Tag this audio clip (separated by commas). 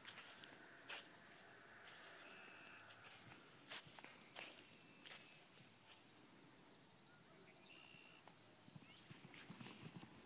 outside, rural or natural